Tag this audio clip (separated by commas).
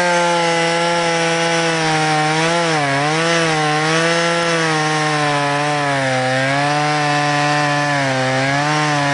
Chainsaw, chainsawing trees